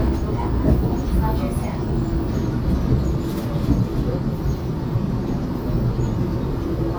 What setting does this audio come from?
subway train